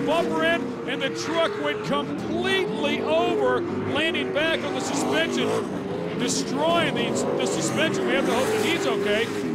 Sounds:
truck, vehicle, speech

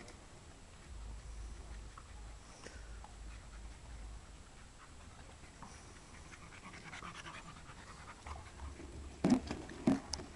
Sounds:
animal, dog, domestic animals

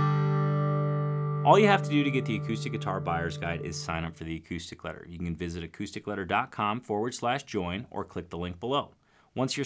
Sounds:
music, acoustic guitar, plucked string instrument, speech, guitar, musical instrument

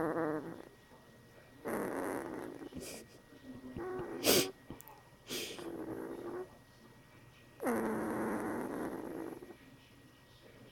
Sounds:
dog growling

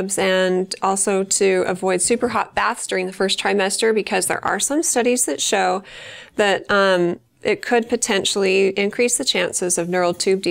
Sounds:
speech

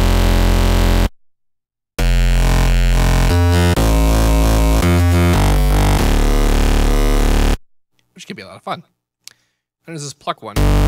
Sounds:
speech, electronic music, music

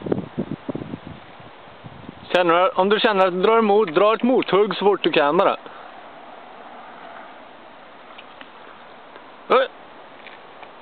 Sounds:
speech, outside, rural or natural

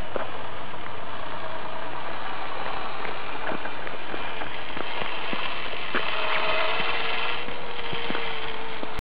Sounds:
vehicle, truck

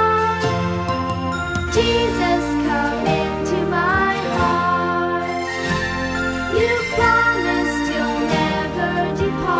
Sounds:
christmas music, music, music for children

